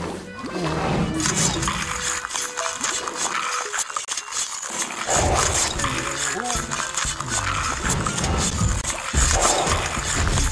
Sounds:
music

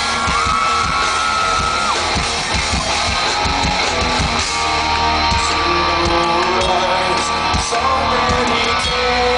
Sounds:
music

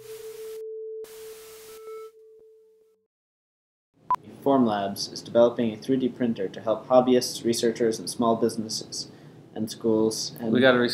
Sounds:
speech
music

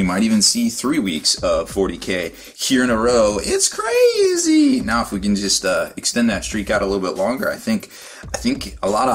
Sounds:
speech
music

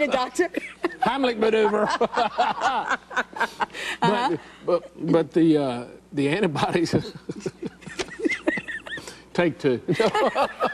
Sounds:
speech

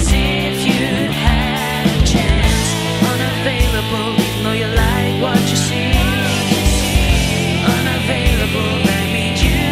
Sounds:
music
guitar
musical instrument
progressive rock
effects unit

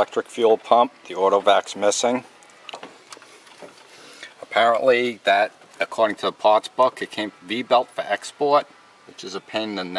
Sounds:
speech

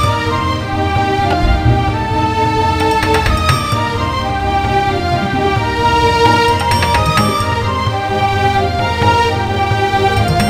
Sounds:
music
new-age music

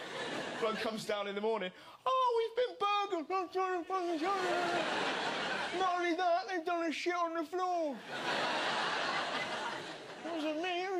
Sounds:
speech

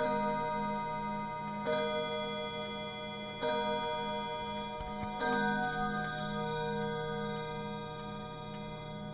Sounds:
chime
tick-tock
tick

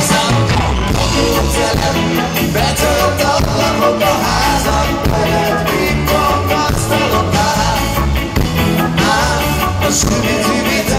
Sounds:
rock and roll
music
ska

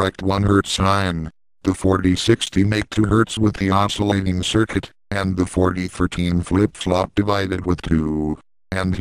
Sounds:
speech

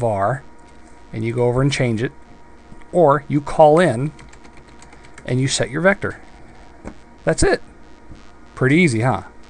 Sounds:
typing
computer keyboard
speech

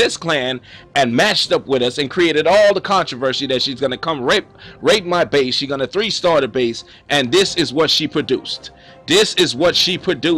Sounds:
speech
music

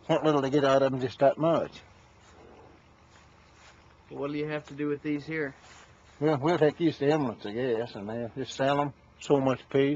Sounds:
speech

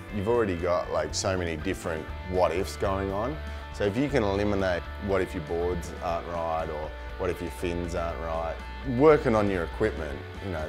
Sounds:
speech
music

